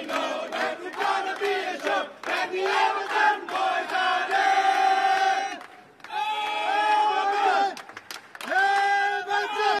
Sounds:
Choir, Male singing

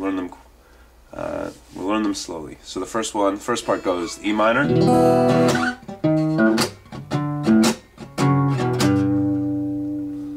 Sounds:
Guitar, Musical instrument, Strum, Music, Speech, Plucked string instrument

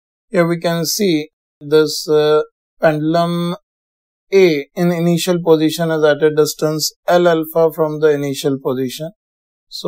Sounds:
Speech

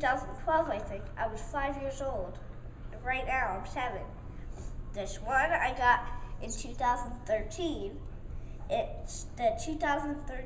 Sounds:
Speech

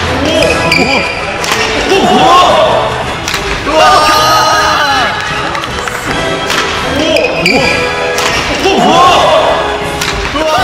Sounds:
playing badminton

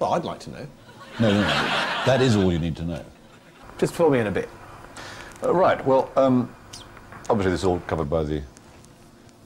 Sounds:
Speech, Television

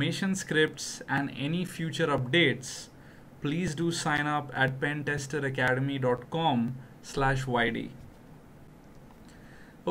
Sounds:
Speech

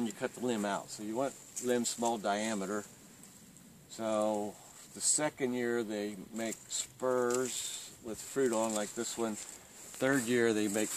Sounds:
Speech

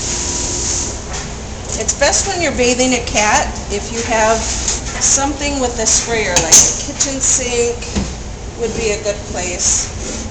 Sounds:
Speech

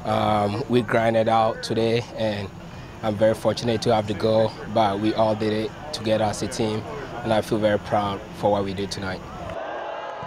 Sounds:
Speech

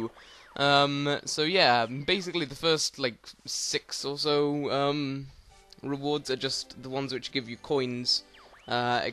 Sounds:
Speech

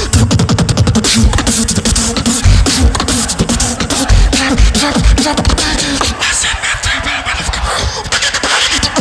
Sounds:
beat boxing

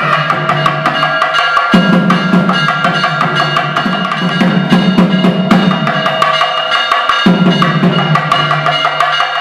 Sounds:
Musical instrument, Drum, Traditional music, Trumpet, Bass drum, Music

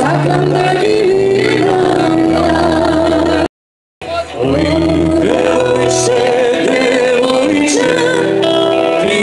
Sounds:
Music, Male singing, Female singing

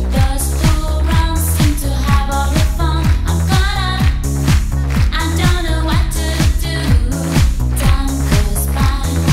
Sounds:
Pop music, Music, Disco, Music of Asia

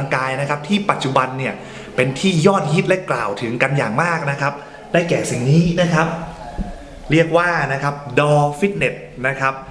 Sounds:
Speech

